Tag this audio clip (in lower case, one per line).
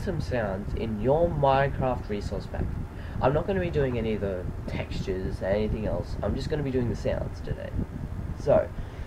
speech